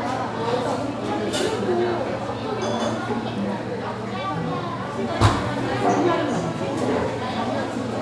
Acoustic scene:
crowded indoor space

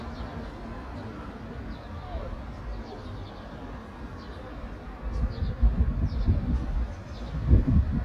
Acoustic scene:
street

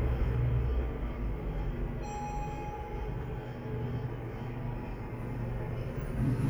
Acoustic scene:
elevator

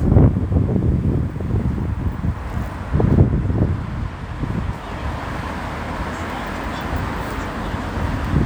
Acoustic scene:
street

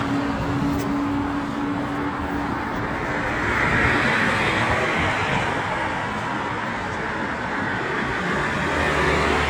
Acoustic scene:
street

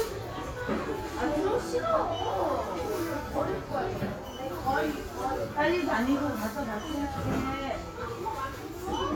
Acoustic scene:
crowded indoor space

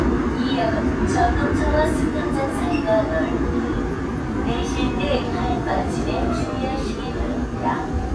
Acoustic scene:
subway train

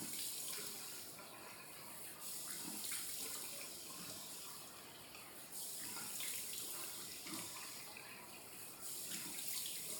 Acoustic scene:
restroom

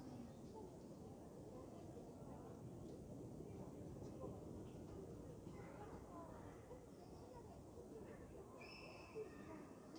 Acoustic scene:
park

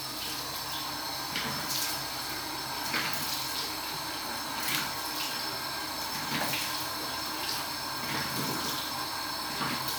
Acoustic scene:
restroom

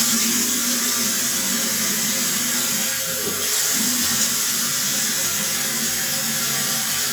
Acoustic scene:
restroom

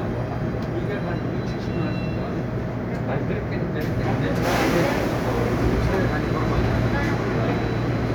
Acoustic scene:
subway train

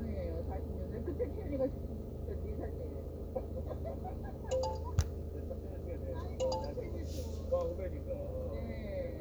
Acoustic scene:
car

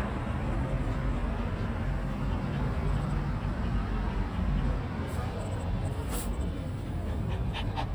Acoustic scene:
residential area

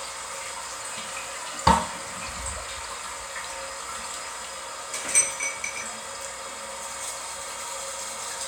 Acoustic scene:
restroom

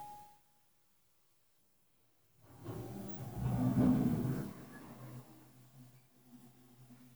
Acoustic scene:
elevator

